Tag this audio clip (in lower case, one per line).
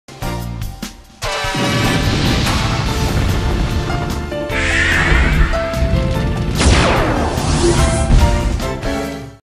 sound effect
music